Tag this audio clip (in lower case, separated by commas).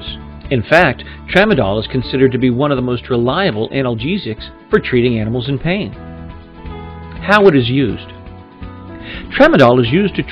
speech, music